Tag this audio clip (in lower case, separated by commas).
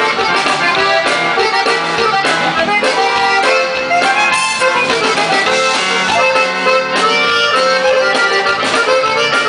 pop music, funk, music, exciting music